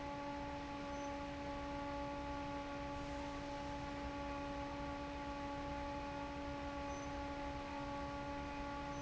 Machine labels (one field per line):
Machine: fan